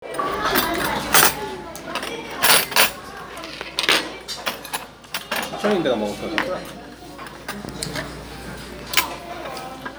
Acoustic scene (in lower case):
restaurant